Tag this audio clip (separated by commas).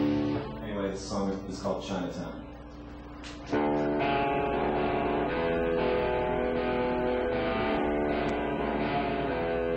Music, Speech